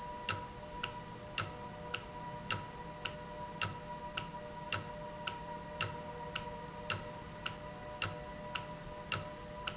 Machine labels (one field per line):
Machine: valve